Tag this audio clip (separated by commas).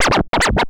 Scratching (performance technique), Musical instrument, Music